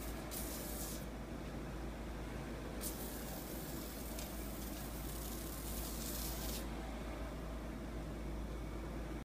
Intermittent spraying sound with distant machinery hum